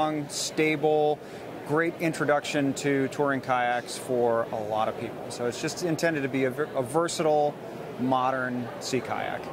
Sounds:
speech

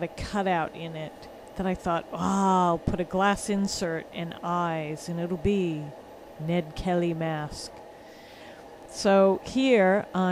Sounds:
speech

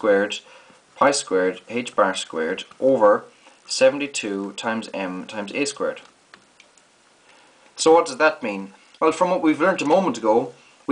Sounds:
inside a small room, speech

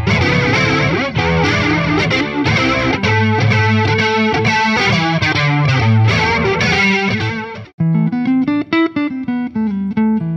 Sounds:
music, electric guitar

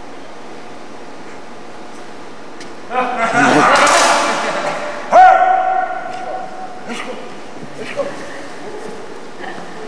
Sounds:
speech, inside a large room or hall

